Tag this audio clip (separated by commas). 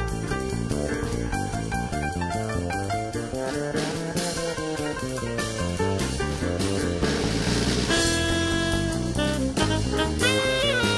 Music